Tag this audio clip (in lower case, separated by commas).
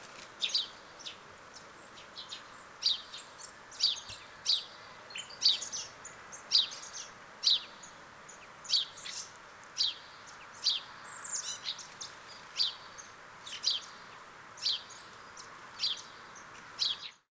tweet, wild animals, bird song, animal, bird